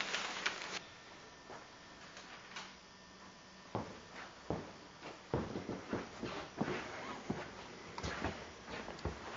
A rustling is heard, followed by footsteps